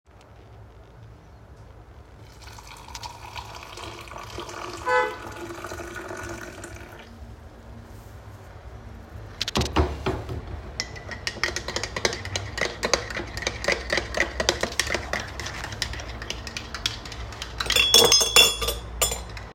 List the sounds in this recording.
running water, cutlery and dishes